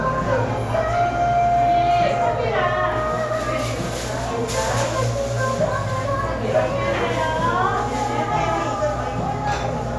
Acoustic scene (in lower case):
cafe